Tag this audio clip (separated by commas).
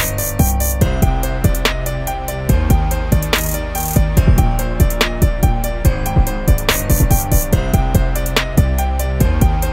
Music